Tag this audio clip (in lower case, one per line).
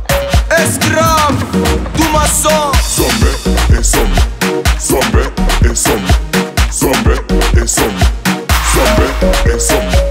exciting music
music